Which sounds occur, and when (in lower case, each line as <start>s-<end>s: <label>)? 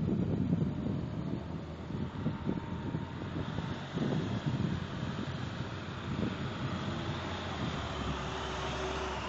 0.0s-1.5s: wind noise (microphone)
0.0s-9.2s: car
0.0s-9.2s: wind
1.9s-2.7s: wind noise (microphone)
2.9s-5.5s: wind noise (microphone)
6.1s-6.7s: wind noise (microphone)
7.5s-8.2s: wind noise (microphone)